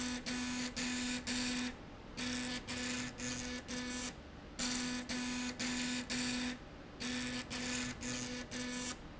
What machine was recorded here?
slide rail